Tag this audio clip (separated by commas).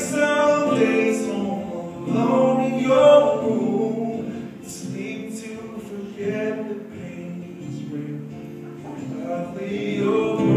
Singing, Music